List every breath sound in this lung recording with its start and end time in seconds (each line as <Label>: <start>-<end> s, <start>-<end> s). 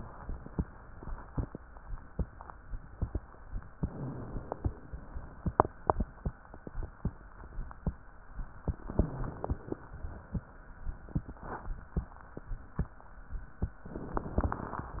Inhalation: 3.81-4.70 s, 8.79-9.82 s, 13.91-14.94 s